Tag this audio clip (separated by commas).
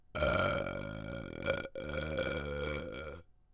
eructation